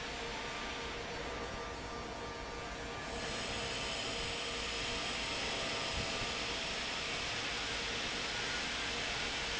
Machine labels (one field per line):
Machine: fan